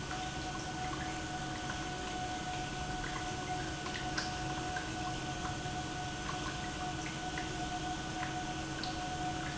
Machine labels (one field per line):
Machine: pump